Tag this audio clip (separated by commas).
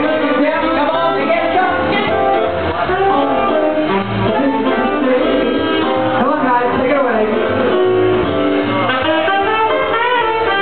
Speech, Music, Jazz